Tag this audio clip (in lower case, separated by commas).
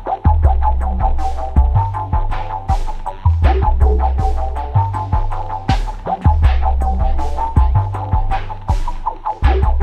music